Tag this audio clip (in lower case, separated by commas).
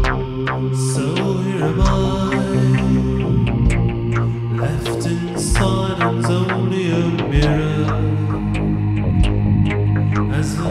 music, background music, soul music